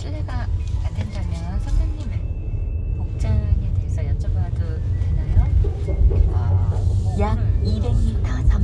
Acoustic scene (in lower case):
car